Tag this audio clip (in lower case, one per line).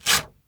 tearing